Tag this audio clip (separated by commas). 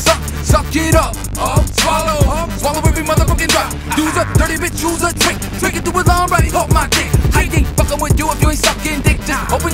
Rock and roll, Music